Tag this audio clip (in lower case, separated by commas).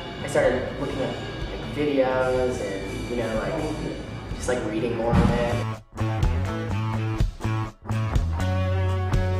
music, speech